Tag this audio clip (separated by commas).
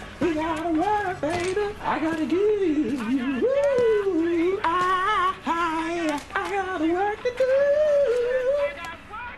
Speech, Male singing